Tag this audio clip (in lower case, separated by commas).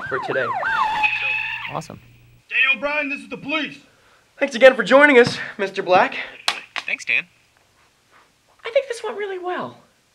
speech, inside a small room